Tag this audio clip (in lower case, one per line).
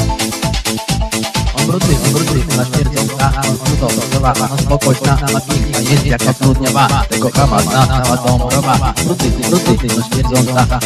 speech
music